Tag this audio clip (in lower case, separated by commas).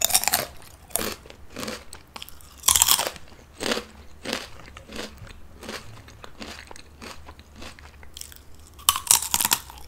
people eating crisps